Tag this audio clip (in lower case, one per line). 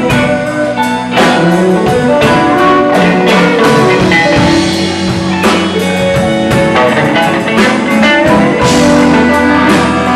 orchestra
musical instrument
electric guitar
guitar
music